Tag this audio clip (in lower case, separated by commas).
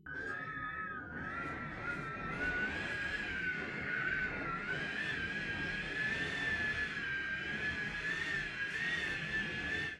wind